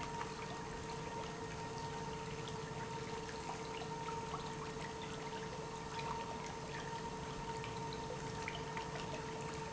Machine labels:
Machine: pump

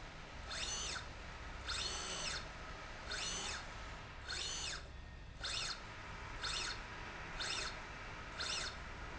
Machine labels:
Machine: slide rail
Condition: normal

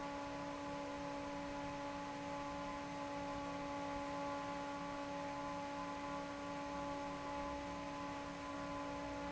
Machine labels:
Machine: fan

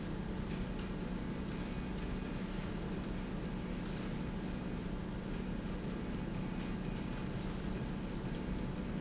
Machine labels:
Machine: slide rail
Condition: normal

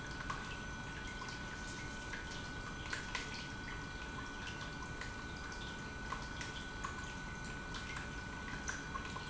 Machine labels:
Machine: pump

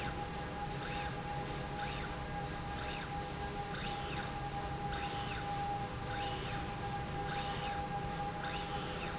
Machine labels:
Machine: slide rail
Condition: normal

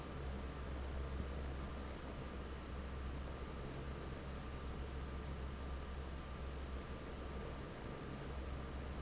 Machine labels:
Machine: fan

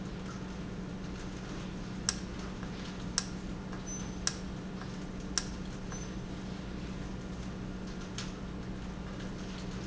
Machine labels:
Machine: valve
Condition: normal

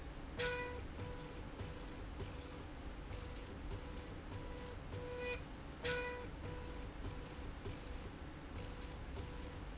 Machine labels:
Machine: slide rail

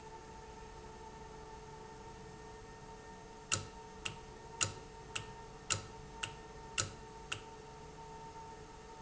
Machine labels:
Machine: valve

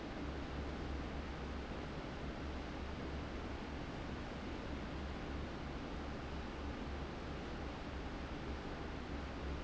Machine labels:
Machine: fan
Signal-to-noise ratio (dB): 0 dB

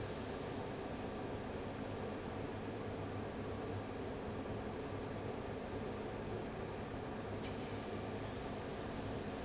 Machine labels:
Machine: fan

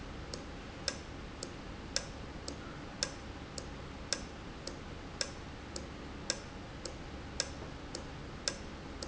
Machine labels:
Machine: valve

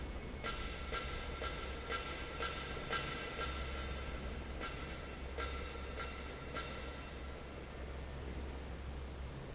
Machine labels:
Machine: fan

